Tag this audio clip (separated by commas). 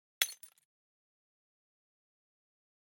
Shatter, Glass